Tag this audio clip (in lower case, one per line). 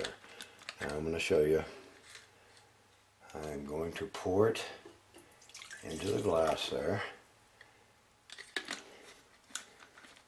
liquid
speech